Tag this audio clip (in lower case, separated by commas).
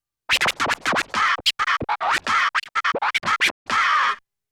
scratching (performance technique), musical instrument, music